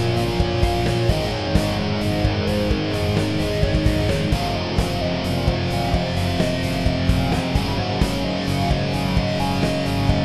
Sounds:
Music, Progressive rock

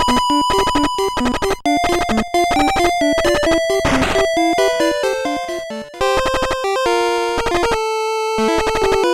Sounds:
Music

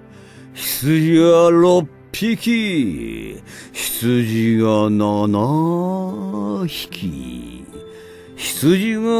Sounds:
Music

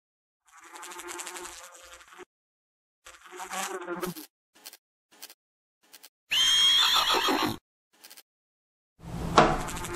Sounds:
housefly, bee or wasp, Insect

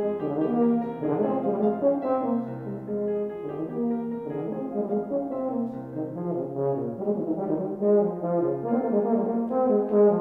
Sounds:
Brass instrument

